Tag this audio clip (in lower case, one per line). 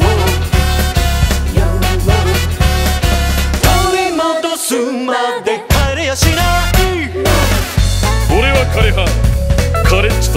music